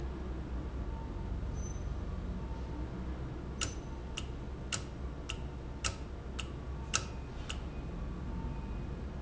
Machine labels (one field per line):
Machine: valve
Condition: normal